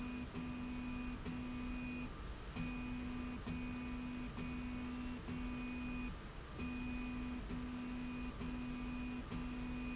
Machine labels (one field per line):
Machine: slide rail